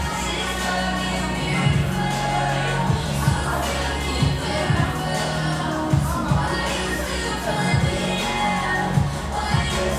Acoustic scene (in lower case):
cafe